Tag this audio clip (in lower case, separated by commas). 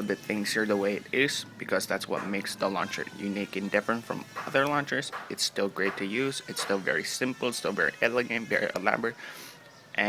inside a small room, speech